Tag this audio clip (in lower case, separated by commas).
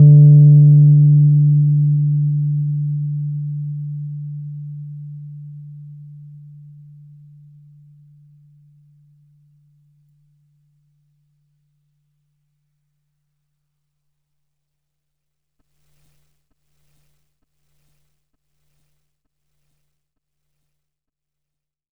piano, music, keyboard (musical), musical instrument